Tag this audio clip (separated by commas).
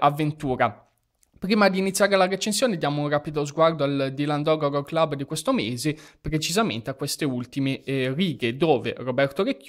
Speech